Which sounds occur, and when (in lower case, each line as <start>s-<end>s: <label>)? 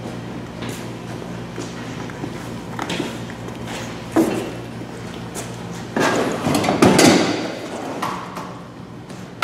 0.0s-9.4s: truck
0.6s-0.8s: generic impact sounds
1.5s-1.8s: generic impact sounds
1.9s-3.6s: footsteps
2.7s-3.1s: generic impact sounds
3.4s-3.8s: generic impact sounds
4.0s-4.3s: generic impact sounds
4.7s-5.8s: footsteps
5.2s-5.5s: generic impact sounds
5.7s-7.3s: generic impact sounds
8.0s-8.4s: generic impact sounds
9.0s-9.2s: generic impact sounds
9.4s-9.4s: generic impact sounds